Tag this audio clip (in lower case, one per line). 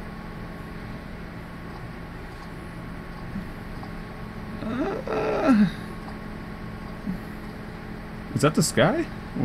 speech